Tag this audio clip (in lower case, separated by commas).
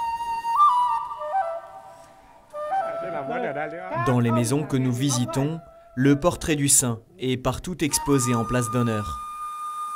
speech, music